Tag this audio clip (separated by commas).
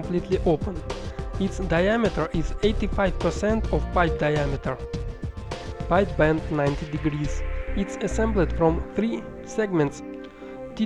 Speech, Music